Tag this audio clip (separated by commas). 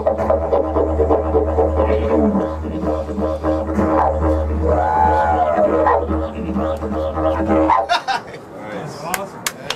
playing didgeridoo